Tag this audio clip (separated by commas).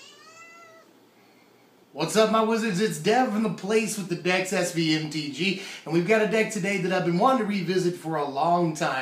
Meow, inside a small room, Caterwaul, Speech